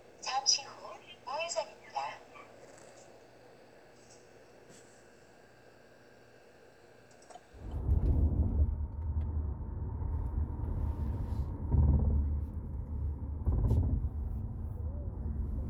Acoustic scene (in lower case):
car